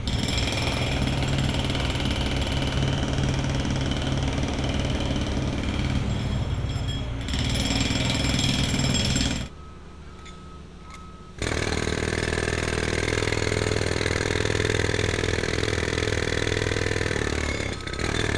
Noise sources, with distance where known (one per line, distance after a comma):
jackhammer, near